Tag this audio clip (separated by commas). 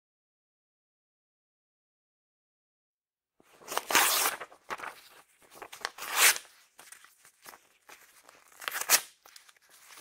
ripping paper